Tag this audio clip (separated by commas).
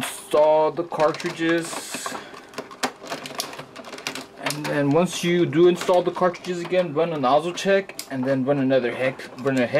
Speech